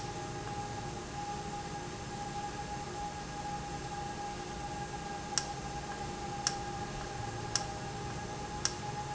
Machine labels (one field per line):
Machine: valve